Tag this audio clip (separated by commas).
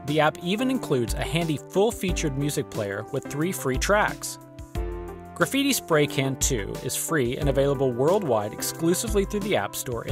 Music, Speech